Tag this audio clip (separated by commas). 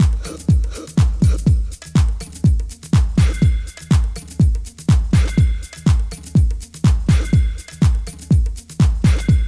Music